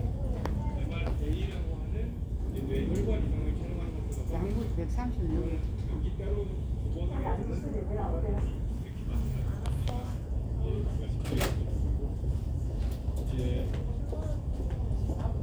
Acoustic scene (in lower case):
crowded indoor space